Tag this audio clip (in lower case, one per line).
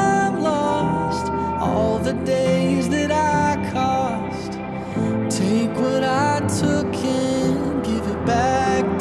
music